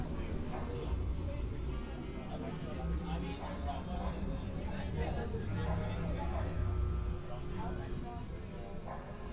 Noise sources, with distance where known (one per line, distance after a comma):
person or small group talking, near
dog barking or whining, far